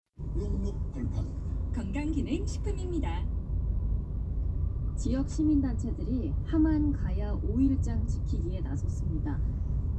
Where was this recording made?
in a car